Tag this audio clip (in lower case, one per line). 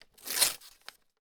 tearing